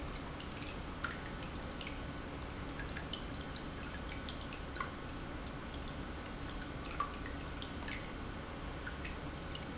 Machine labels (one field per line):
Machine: pump